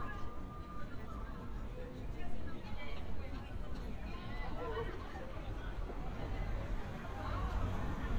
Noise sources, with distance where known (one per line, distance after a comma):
person or small group talking, far